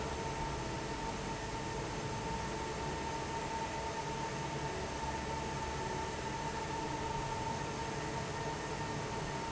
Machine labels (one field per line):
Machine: fan